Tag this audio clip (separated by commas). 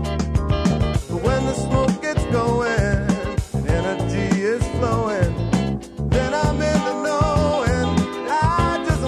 Pop music, Music